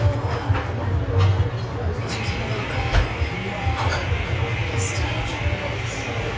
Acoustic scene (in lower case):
cafe